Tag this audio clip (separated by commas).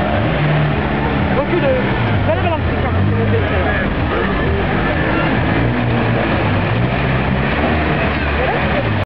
Motor vehicle (road), Speech, Car, Vehicle